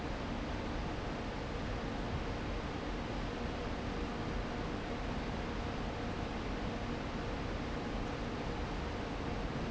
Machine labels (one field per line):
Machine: fan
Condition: abnormal